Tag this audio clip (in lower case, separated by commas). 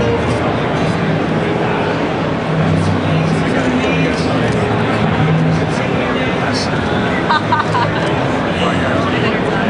speech, plucked string instrument, musical instrument, music